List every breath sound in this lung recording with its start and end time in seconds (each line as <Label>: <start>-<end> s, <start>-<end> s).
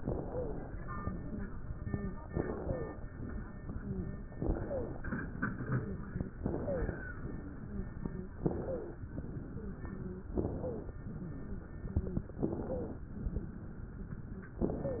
Inhalation: 0.00-0.74 s, 2.31-3.08 s, 4.34-5.09 s, 6.37-7.12 s, 8.42-9.05 s, 10.36-10.99 s, 12.45-13.07 s
Wheeze: 0.21-0.59 s, 1.18-1.56 s, 1.80-2.18 s, 2.58-2.90 s, 3.77-4.25 s, 4.63-4.95 s, 5.52-6.05 s, 6.60-6.93 s, 7.61-7.89 s, 8.04-8.33 s, 9.51-9.83 s, 9.90-10.27 s, 11.14-11.67 s, 11.91-12.28 s, 12.69-12.98 s